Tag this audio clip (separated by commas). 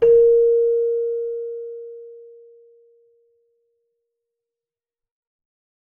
Keyboard (musical), Musical instrument, Music